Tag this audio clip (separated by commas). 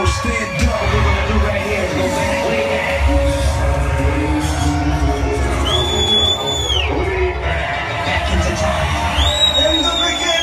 Speech, Music